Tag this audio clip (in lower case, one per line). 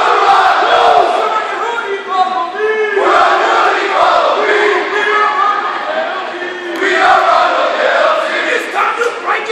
battle cry
crowd
people crowd